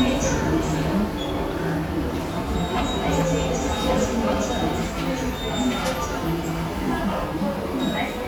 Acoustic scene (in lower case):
subway station